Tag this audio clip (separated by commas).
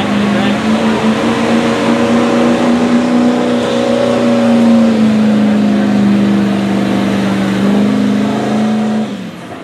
Speech, Vehicle, Air brake